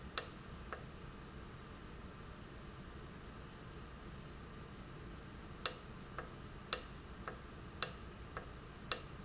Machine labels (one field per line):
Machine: valve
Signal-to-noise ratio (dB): 6 dB